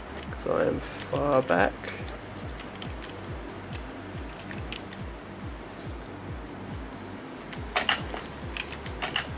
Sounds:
music, speech

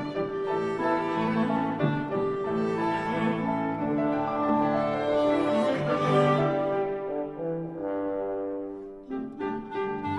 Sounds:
violin, cello, bowed string instrument

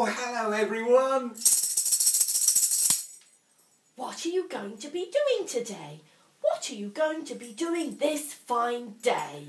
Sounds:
speech, music

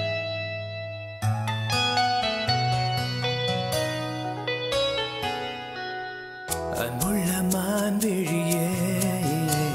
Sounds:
music, singing

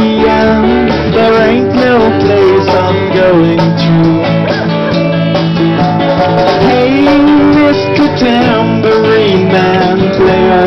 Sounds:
musical instrument, music

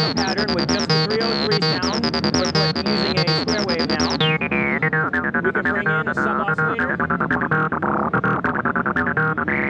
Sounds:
synthesizer, playing synthesizer

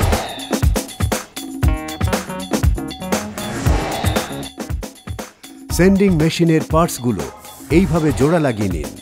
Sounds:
music, speech

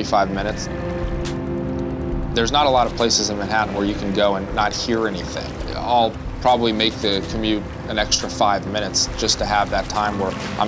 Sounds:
boat, speech

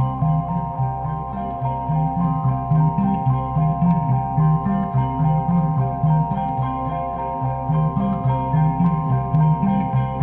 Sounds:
music

